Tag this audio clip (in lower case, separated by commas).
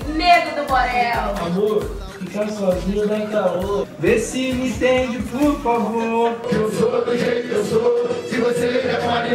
music, speech